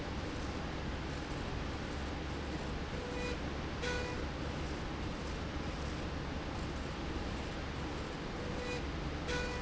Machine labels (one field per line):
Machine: slide rail